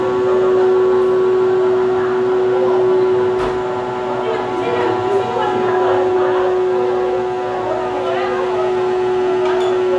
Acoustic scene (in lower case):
cafe